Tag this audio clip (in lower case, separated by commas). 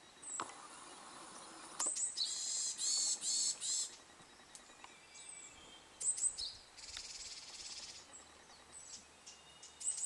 bird, bird call